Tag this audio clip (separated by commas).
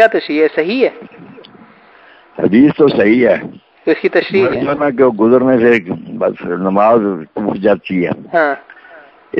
Speech